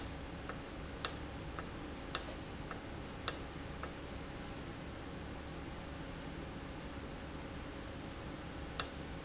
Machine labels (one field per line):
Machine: valve